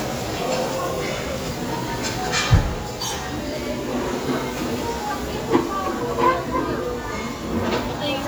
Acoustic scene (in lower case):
crowded indoor space